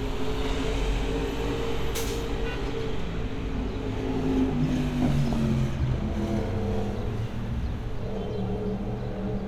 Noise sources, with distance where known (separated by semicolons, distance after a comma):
medium-sounding engine, near; car horn